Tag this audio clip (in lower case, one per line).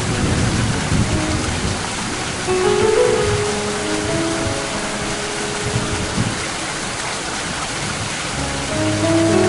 music
rain on surface